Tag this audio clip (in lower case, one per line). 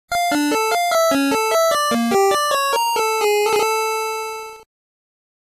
music
video game music